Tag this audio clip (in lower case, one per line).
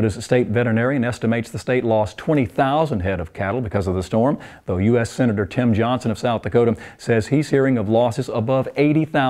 speech